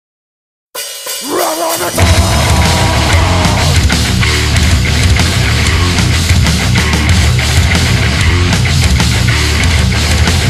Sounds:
Hi-hat, Cymbal

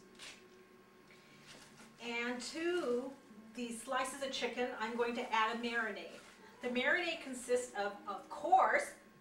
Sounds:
Speech

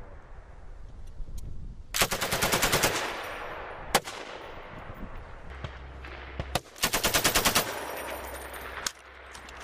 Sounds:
machine gun shooting

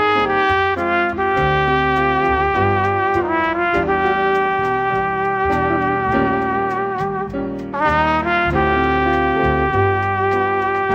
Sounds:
Music, Trumpet

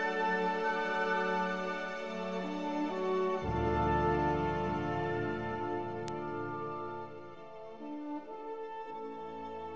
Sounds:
Music

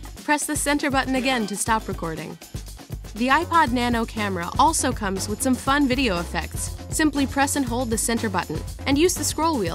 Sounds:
Speech, Music

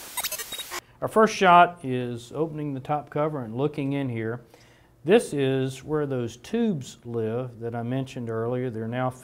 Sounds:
Speech

